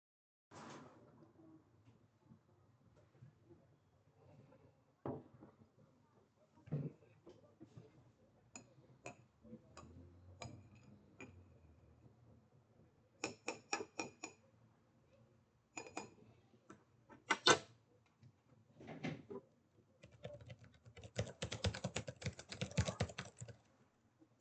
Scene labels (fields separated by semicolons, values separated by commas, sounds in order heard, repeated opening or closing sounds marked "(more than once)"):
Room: bedroom; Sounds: cutlery and dishes, keyboard typing